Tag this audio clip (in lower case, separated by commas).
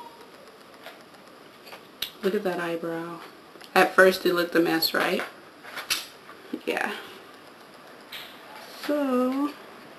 inside a small room, speech